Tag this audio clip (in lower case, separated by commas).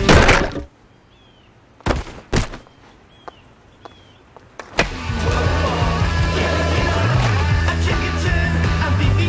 music, skateboard